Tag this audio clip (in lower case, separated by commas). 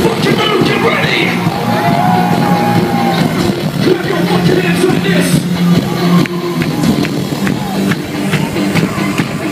music, background music